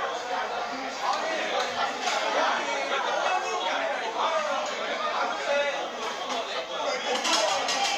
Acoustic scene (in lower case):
restaurant